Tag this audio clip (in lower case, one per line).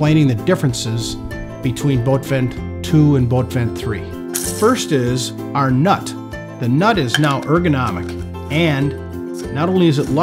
music
speech